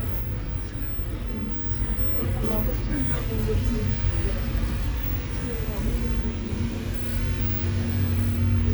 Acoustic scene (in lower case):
bus